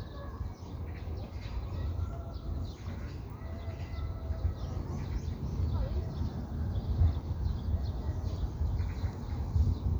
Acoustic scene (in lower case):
park